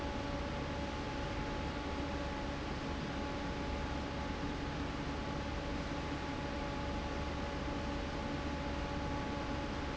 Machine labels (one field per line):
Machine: fan